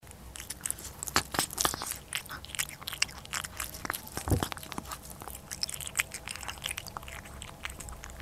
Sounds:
Cat, Animal, pets

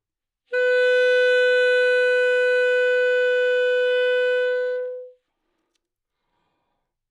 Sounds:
Music, Musical instrument, woodwind instrument

